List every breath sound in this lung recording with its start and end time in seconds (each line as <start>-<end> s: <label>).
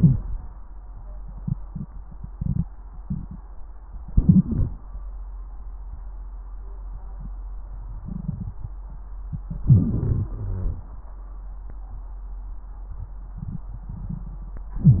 4.06-4.72 s: inhalation
9.66-10.32 s: inhalation
10.33-10.91 s: exhalation
10.33-10.91 s: wheeze